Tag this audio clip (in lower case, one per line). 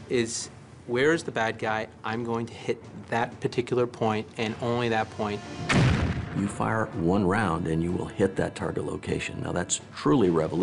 artillery fire
speech
music